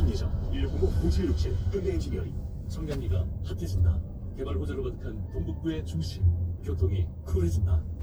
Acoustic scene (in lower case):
car